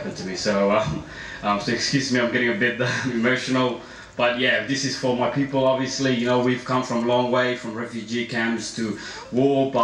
A man speaks with the sound of typing on computer keyboards in the background